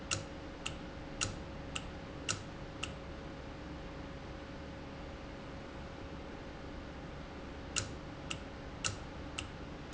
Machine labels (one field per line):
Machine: valve